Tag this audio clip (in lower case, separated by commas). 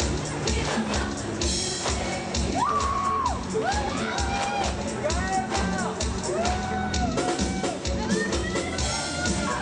exciting music, pop music, music, speech